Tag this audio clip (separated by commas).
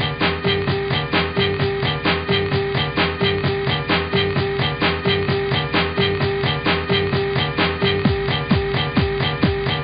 Music